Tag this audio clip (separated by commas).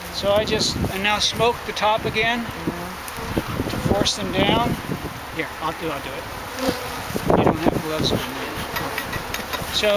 housefly, Insect, bee or wasp